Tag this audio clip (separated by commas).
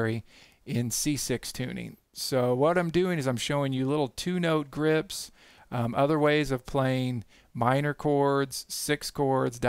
Speech